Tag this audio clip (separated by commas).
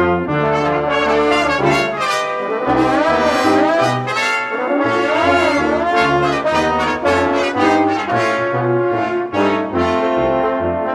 Trombone, Brass instrument, Music, Trumpet